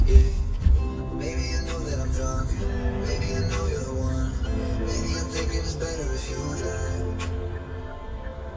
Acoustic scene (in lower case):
car